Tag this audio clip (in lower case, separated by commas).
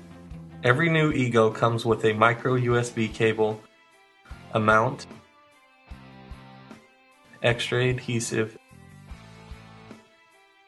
music, speech